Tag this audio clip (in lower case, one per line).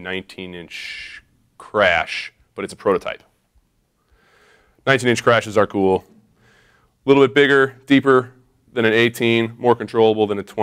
speech